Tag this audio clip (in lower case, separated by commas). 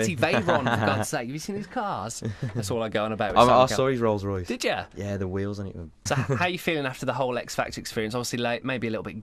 speech